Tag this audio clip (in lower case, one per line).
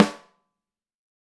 music
musical instrument
drum
snare drum
percussion